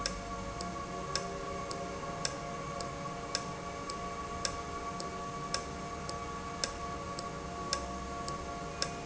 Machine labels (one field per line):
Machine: valve